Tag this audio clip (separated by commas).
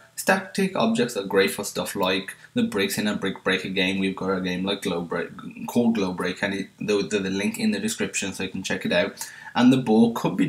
Speech